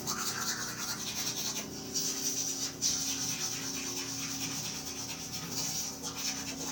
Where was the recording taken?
in a restroom